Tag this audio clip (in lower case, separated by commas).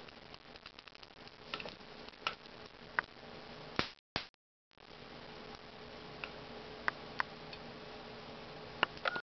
frying (food)